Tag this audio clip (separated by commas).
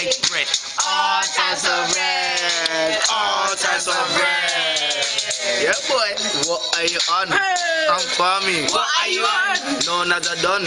Male singing, Music